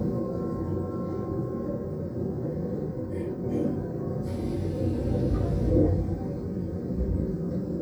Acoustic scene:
subway train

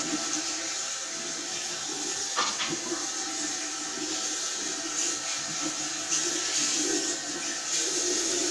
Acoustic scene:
restroom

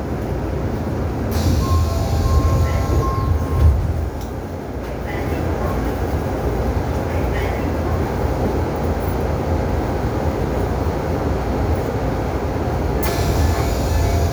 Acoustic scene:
subway train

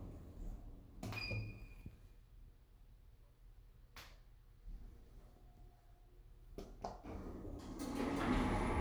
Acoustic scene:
elevator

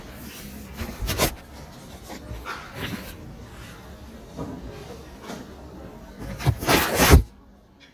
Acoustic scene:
crowded indoor space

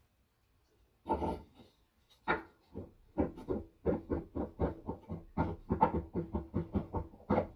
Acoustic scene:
kitchen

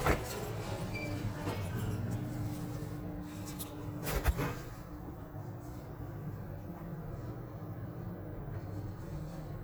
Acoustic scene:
elevator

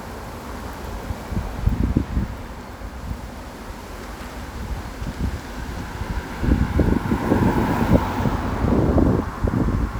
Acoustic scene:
street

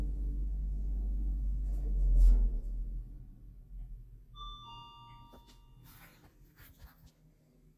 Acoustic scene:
elevator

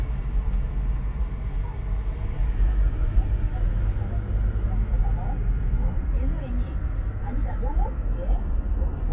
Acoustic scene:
car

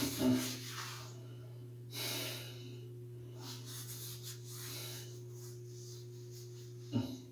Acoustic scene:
restroom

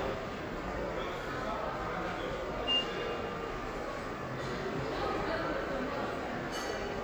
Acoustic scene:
subway station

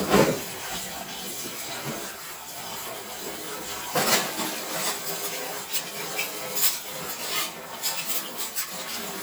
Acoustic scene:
kitchen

